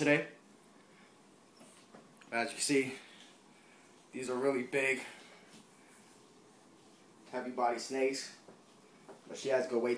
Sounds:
speech

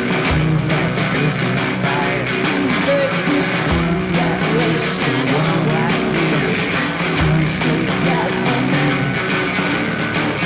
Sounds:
music

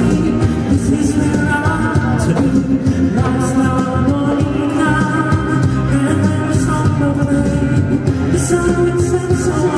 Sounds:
male singing, music

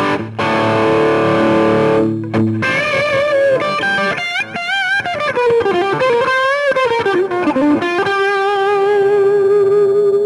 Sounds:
electric guitar, music, musical instrument, guitar

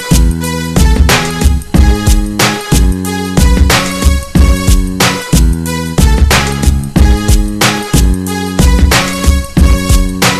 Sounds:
music

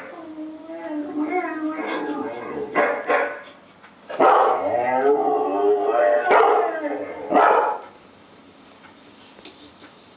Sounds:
dog howling

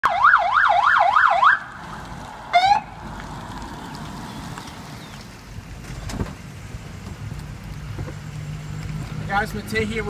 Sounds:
car, outside, urban or man-made, vehicle, speech

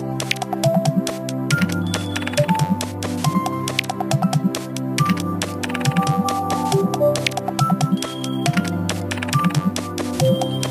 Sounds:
music

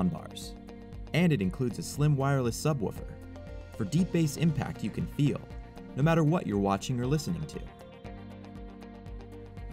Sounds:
speech, music

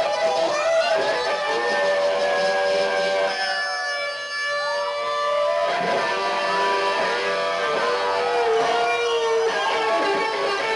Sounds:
strum, music, electric guitar, guitar, plucked string instrument, musical instrument

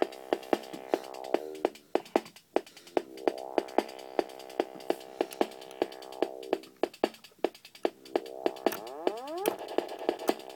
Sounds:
electronic music, musical instrument, dubstep, music, synthesizer

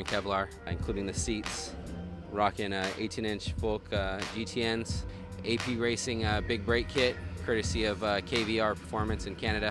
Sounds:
speech, music

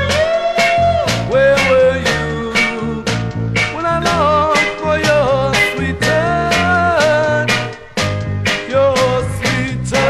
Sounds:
music

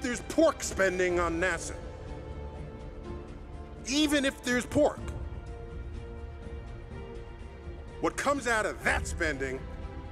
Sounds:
music, male speech, speech

